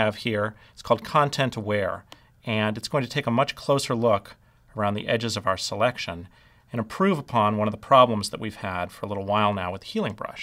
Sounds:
Speech

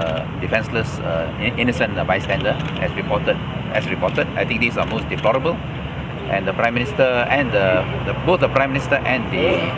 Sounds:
Speech

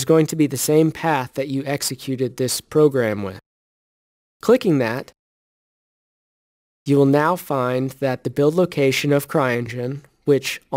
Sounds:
Speech

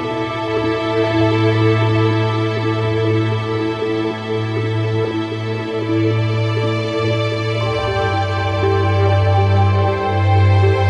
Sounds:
Background music, Music

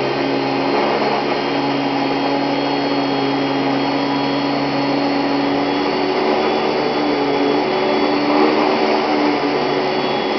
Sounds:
Vacuum cleaner

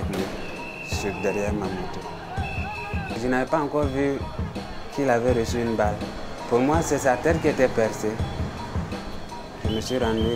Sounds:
Speech, Music

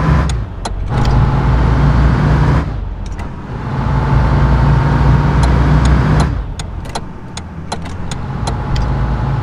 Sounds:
Vehicle, Motor vehicle (road)

